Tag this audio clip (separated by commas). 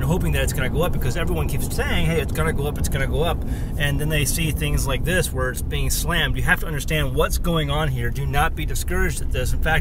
Speech